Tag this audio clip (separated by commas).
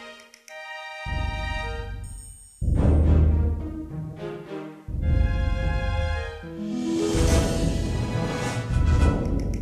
Video game music, Music